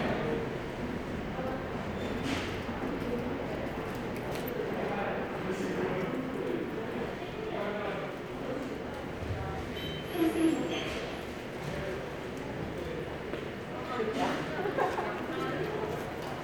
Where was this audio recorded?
in a subway station